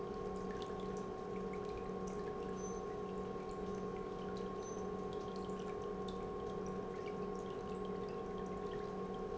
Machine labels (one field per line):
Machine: pump